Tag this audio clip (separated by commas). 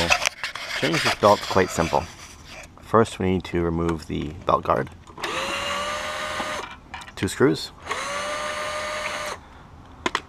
Tools, Power tool